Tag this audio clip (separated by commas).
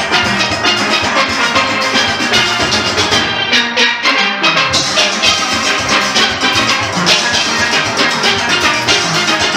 playing steelpan